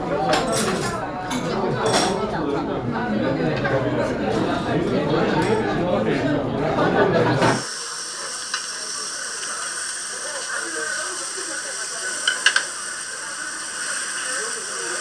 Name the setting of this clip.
restaurant